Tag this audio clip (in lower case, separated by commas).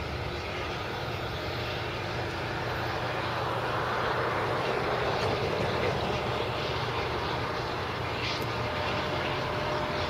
train, railroad car, vehicle, rail transport